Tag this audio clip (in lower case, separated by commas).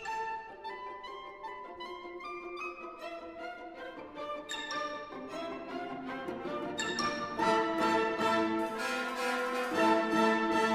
music